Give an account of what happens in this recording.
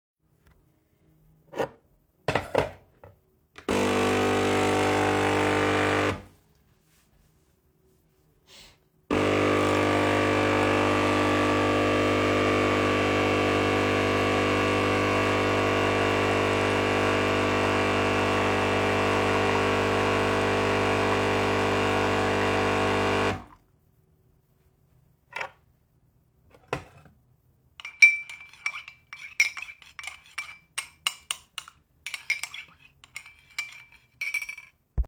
Putting down a mug on the coffee machine so the machine can pour coffee in it, turned on the coffee machine and after I stirred the coffee with a tea spoon